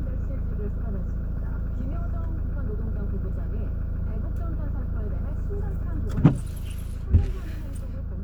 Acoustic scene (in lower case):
car